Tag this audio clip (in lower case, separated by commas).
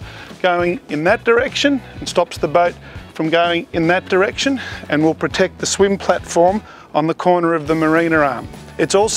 music, speech